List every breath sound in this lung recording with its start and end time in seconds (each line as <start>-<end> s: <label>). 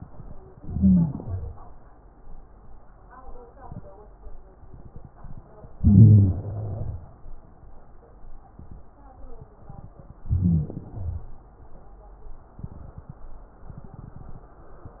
0.53-1.38 s: inhalation
0.53-1.38 s: wheeze
5.76-7.03 s: inhalation
5.76-7.03 s: crackles
10.19-11.46 s: inhalation
10.19-11.46 s: crackles